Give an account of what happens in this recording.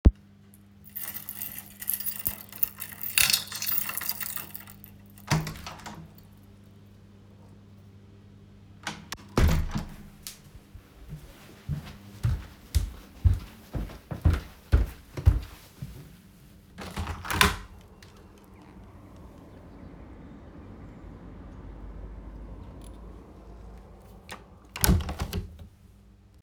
I used the keys to open the apartment door and stepped inside. I walked towards the living room. I opened the window, waited for a few seconds and then closed it.